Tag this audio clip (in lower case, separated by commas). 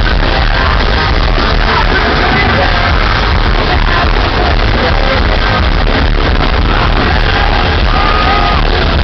music, rhythm and blues